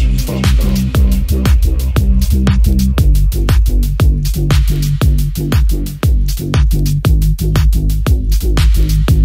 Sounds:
house music
music

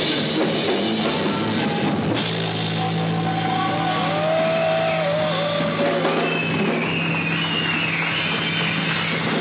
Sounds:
musical instrument
guitar
music
rock music
drum
plucked string instrument
drum kit

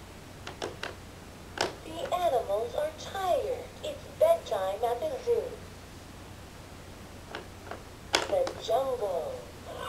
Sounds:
speech

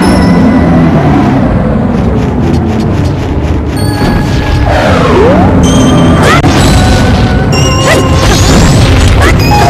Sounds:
music

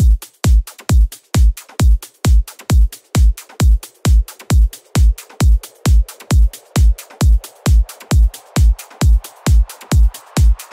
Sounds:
music
techno
electronic music

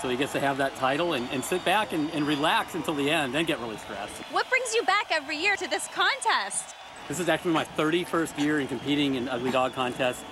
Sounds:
speech

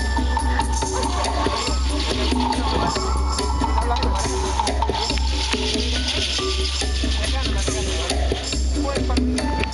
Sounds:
traditional music
speech
music

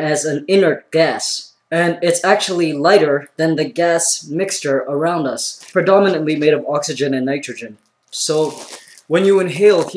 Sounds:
speech

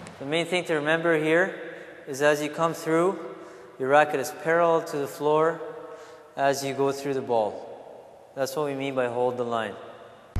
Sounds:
playing squash

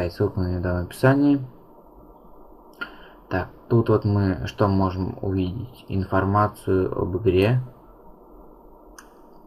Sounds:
speech

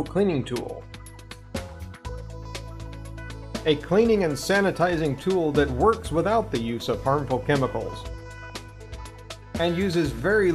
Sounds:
speech
music

